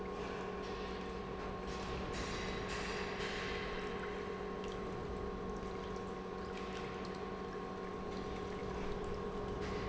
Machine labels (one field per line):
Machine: pump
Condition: normal